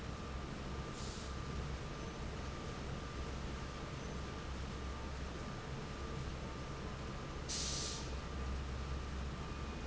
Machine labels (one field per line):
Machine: fan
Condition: normal